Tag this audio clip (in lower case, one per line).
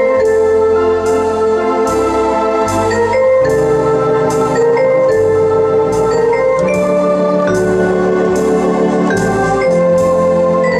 electronic organ
organ